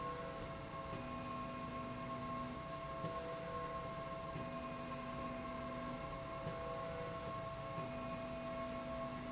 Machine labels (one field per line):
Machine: slide rail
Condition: normal